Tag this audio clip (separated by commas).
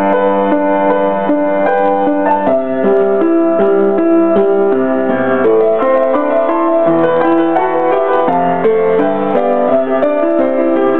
Music